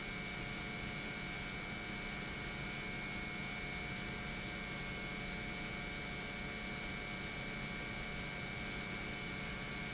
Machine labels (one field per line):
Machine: pump